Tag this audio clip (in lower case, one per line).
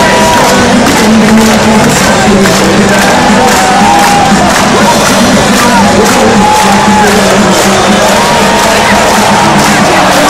male singing
music